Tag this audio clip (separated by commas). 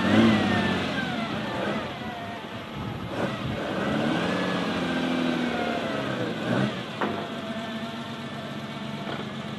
outside, urban or man-made, Vehicle, Car